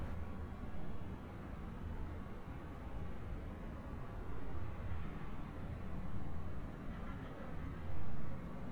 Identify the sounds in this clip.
person or small group talking